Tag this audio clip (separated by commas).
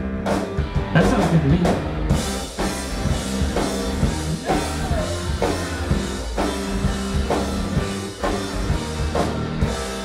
Speech, Music